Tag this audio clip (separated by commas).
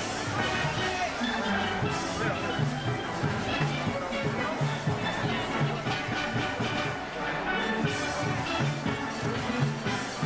Drum, Music, Speech